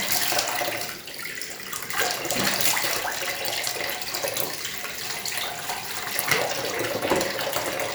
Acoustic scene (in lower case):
restroom